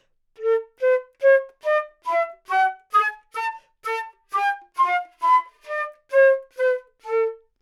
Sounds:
music, wind instrument, musical instrument

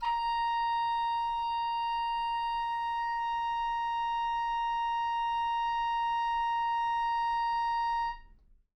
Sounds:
wind instrument, music, musical instrument

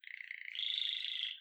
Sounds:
bird, wild animals, bird song, animal, chirp

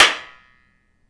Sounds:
hands, clapping

